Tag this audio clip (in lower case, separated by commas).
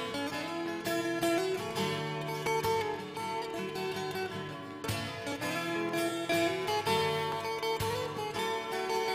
music